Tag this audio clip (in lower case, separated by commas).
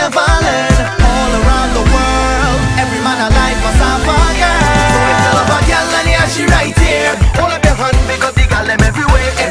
music